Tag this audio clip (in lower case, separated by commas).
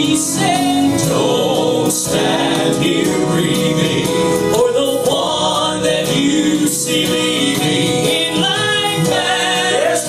music, male singing